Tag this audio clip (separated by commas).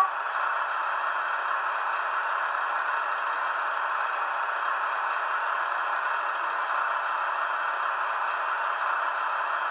Rattle